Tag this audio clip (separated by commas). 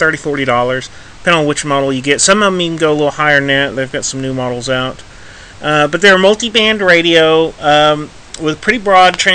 Speech